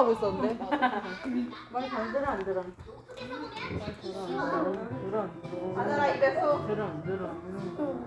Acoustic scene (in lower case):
crowded indoor space